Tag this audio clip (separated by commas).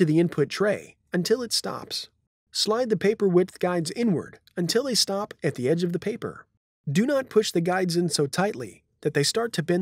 Speech